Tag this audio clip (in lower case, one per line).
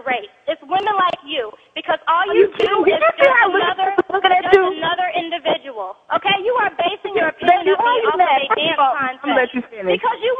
speech